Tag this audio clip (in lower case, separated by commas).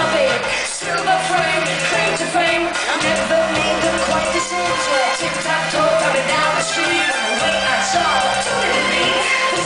music